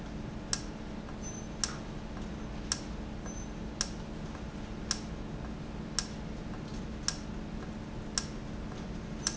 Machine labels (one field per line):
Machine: valve